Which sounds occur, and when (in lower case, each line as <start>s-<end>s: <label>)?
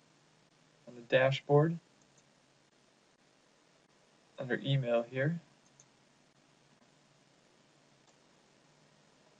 0.0s-9.3s: mechanisms
0.8s-1.7s: man speaking
1.8s-2.2s: clicking
4.3s-5.3s: man speaking
5.5s-5.8s: clicking
8.0s-8.1s: generic impact sounds